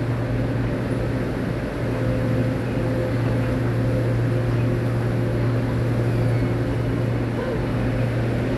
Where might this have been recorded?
in a subway station